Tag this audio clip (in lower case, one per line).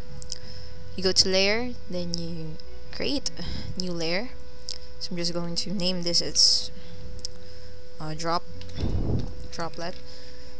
speech